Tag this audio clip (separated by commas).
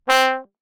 Brass instrument, Music, Musical instrument